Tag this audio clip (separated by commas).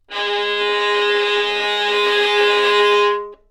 Musical instrument, Bowed string instrument, Music